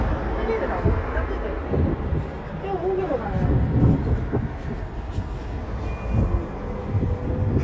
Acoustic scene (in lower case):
street